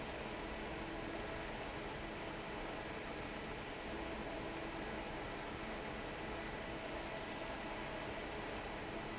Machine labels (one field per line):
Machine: fan